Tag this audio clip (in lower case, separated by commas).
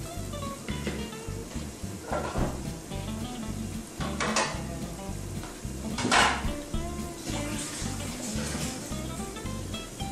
dishes, pots and pans